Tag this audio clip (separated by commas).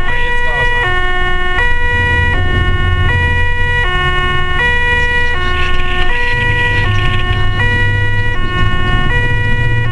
Ambulance (siren), Emergency vehicle, Siren